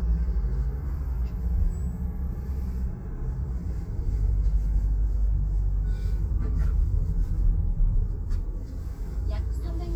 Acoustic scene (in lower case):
car